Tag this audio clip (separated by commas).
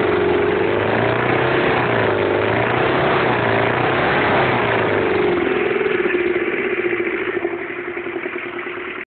Vehicle, Accelerating